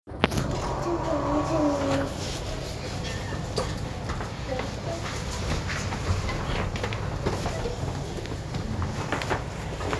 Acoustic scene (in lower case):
elevator